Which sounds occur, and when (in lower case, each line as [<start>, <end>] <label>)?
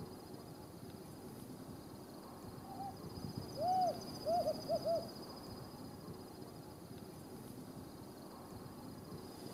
[0.00, 9.53] cricket
[0.00, 9.53] wind
[4.18, 5.02] owl
[6.93, 7.00] tick